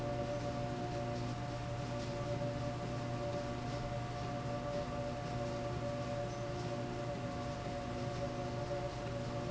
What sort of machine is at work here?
slide rail